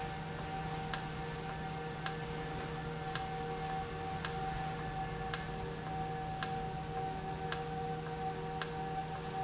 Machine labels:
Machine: valve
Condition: normal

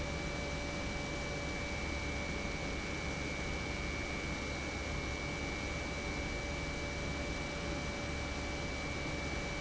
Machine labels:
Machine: pump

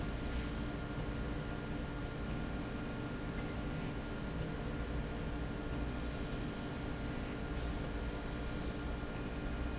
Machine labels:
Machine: slide rail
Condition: normal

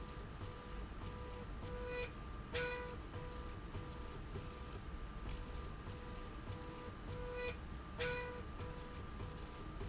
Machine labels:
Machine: slide rail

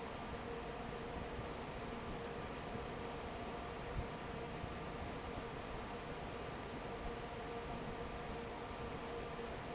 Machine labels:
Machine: fan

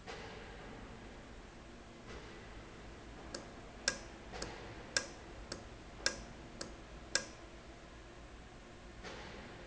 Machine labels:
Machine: valve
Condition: normal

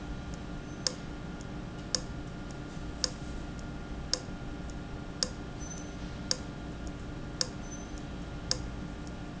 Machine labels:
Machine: valve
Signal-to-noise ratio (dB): -6 dB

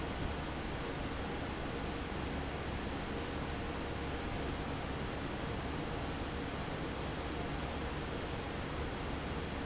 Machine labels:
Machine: fan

